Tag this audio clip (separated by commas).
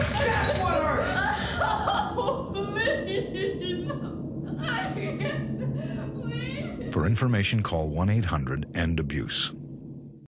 Speech